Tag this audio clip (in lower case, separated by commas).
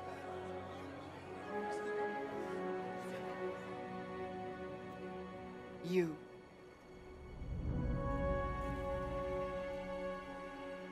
speech, narration, music, woman speaking